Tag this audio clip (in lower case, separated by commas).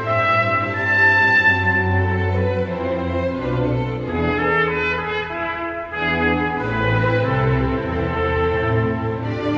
musical instrument, music, trumpet